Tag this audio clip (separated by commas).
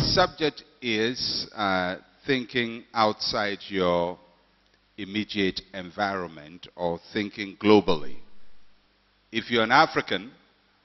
Speech